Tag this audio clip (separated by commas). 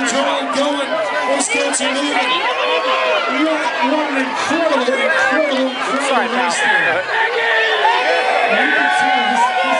Crowd, Speech